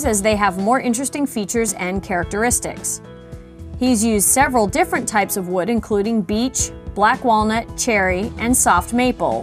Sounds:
music
speech

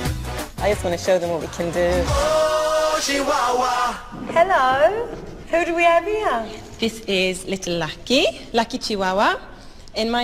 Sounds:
speech
music

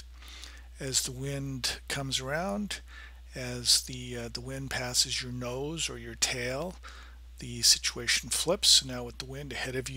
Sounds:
speech

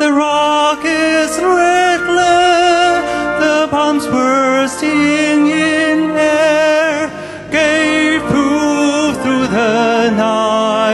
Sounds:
music
male singing

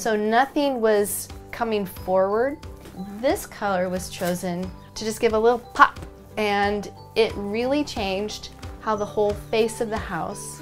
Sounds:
music
speech

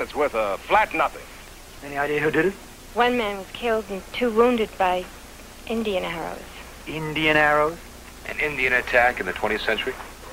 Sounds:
speech

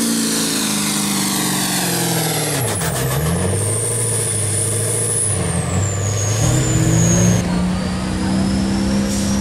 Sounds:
vehicle
speech
medium engine (mid frequency)
truck

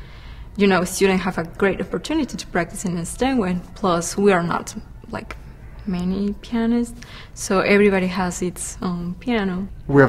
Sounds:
music
speech

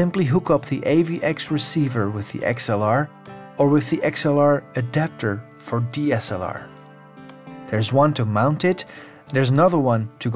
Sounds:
music
speech

